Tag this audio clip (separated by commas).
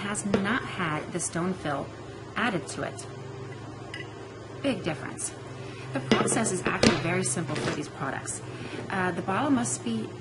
Speech